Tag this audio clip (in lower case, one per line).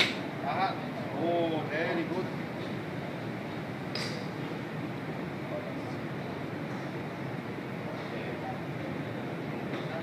golf driving